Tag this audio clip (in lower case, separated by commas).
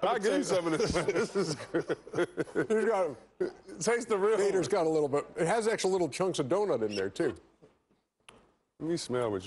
speech